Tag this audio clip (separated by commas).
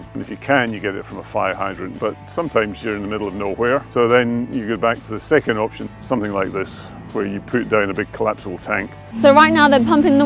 Speech, Music